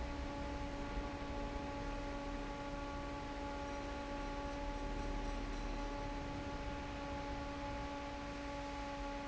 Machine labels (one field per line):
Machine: fan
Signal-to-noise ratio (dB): 0 dB